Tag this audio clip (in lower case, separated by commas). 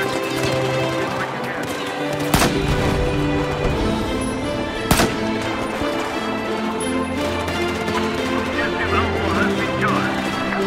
gunshot